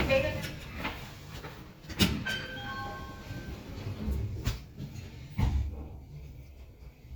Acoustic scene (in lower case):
elevator